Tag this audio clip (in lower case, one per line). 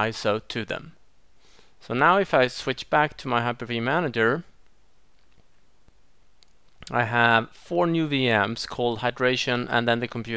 speech